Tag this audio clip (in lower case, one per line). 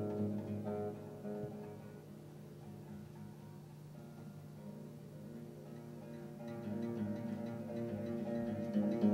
musical instrument
classical music
guitar
plucked string instrument
music